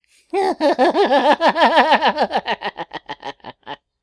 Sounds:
human voice, laughter

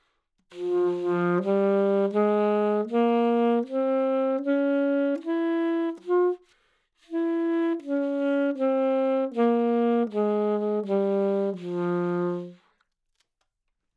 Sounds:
musical instrument, woodwind instrument, music

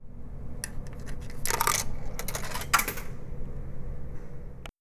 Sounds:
home sounds, coin (dropping)

